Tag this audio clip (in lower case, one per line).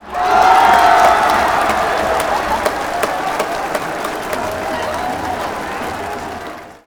crowd
human group actions